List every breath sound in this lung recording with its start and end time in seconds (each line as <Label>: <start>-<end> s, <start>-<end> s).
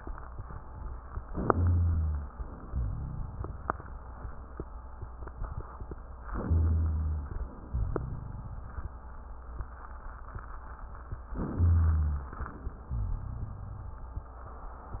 Inhalation: 1.24-2.33 s, 6.31-7.72 s, 11.42-12.36 s
Exhalation: 2.33-4.10 s, 7.72-9.27 s, 12.38-14.26 s
Rhonchi: 1.50-2.33 s, 2.70-4.10 s, 6.47-7.31 s, 7.72-8.91 s, 11.53-12.35 s, 12.89-14.26 s